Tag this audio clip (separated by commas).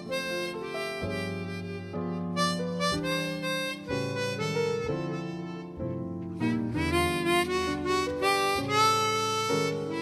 Music